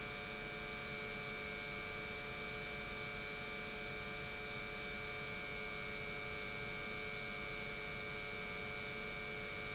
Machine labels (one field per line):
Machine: pump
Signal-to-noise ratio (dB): 6 dB